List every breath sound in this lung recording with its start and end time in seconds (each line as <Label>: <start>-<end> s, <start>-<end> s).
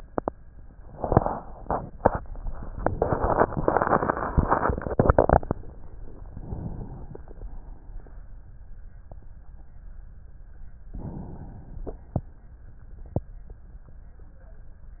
Inhalation: 6.28-7.45 s, 10.91-12.09 s
Exhalation: 7.44-8.67 s